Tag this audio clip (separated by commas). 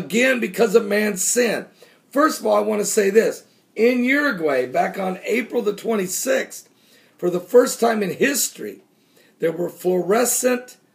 Speech